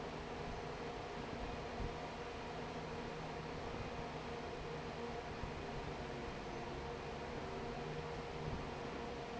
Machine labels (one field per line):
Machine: fan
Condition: normal